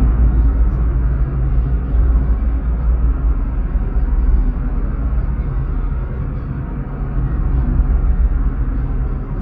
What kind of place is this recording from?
car